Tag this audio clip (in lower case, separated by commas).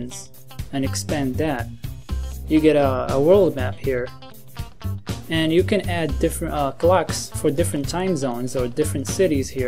music, speech